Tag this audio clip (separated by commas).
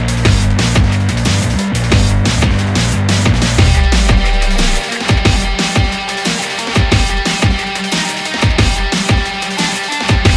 Music